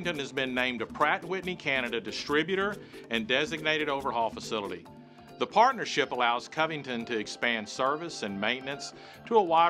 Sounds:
Speech, Music

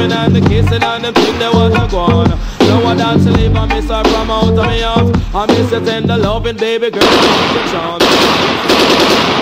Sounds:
gunfire, Machine gun

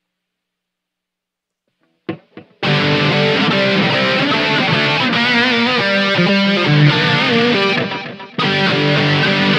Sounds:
Guitar, Music, Musical instrument, Electric guitar

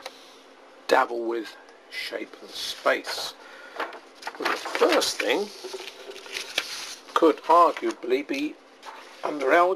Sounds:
Speech, inside a small room

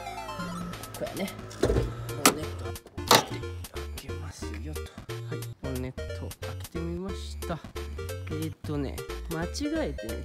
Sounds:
running electric fan

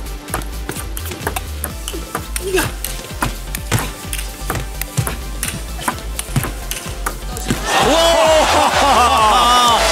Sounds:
playing table tennis

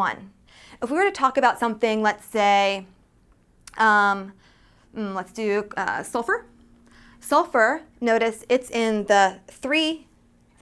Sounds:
Speech

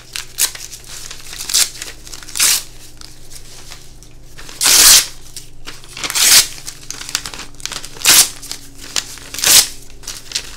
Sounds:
ripping paper

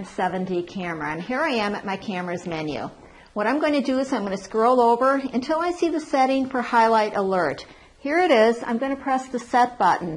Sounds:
Speech

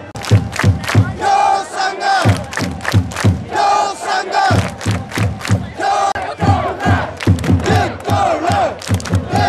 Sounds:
Speech, Music, Male singing

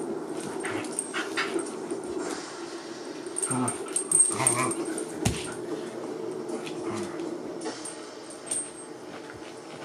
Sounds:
canids, Domestic animals, Dog, Animal

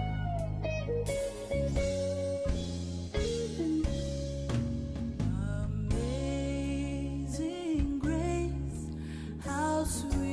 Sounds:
Female singing, Music

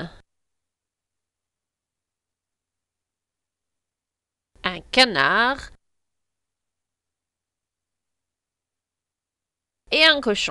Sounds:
Speech

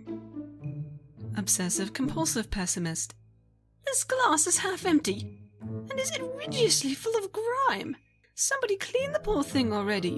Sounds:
Music, Speech

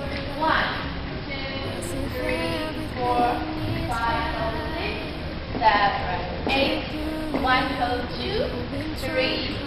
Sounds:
Speech, footsteps, Music

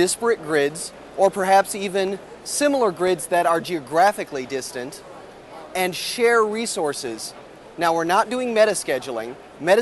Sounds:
Speech

